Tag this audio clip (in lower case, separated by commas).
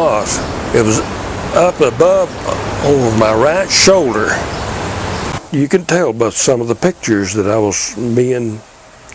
speech